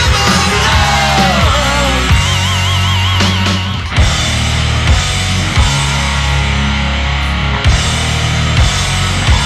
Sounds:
heavy metal, singing, progressive rock, music

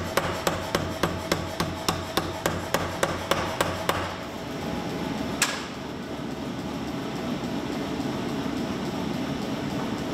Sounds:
forging swords

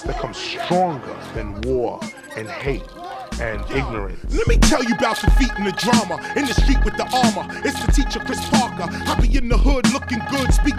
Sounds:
music, hip hop music

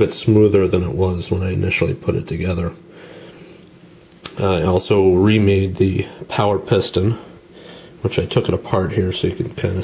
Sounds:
speech

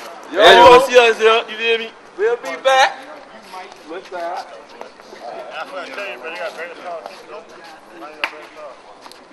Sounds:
speech

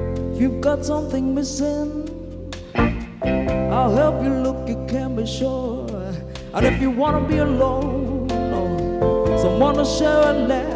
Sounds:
music

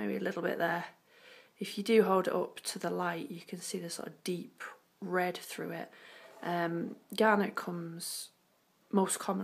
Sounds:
speech

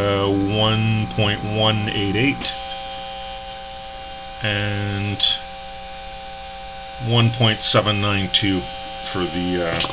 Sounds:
hum, mains hum

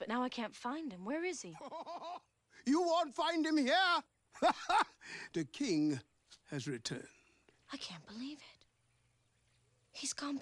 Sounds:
speech

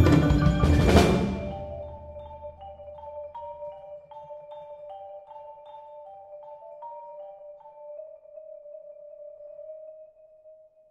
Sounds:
percussion, drum kit, music, drum, musical instrument

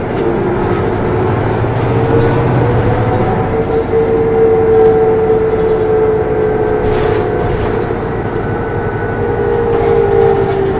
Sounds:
vehicle, driving buses, bus

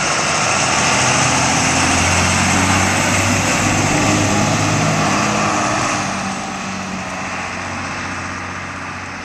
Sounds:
vehicle, bus

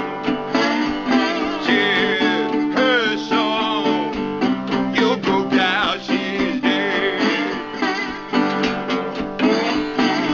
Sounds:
guitar, musical instrument, music, plucked string instrument

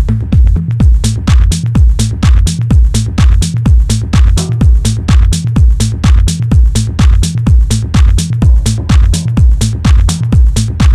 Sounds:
music

